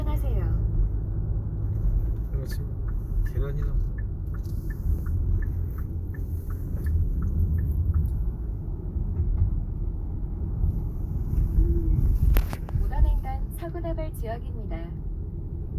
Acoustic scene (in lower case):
car